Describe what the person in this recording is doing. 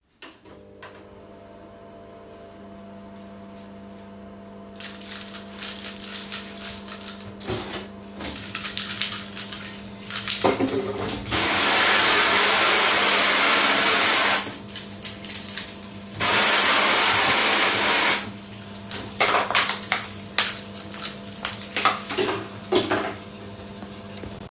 I turn on the microwave fidged with my keys as I turn on the tap and wash dishes